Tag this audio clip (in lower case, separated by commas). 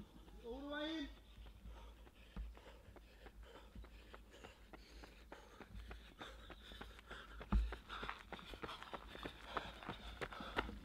speech, run